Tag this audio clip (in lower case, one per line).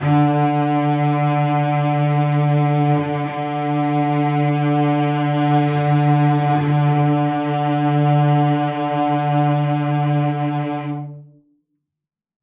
bowed string instrument
music
musical instrument